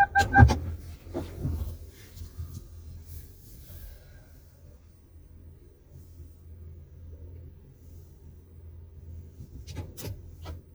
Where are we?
in a car